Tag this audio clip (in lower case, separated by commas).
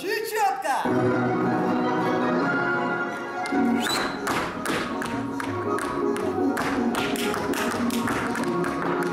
tap dancing